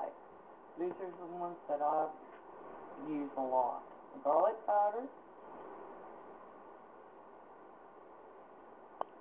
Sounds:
Speech

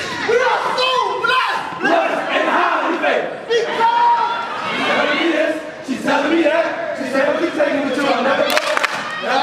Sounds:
inside a public space, Speech

